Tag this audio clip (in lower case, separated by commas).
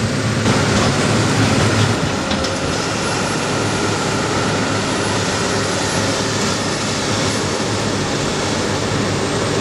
vehicle